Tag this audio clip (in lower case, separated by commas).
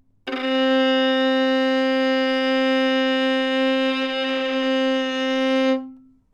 music, bowed string instrument, musical instrument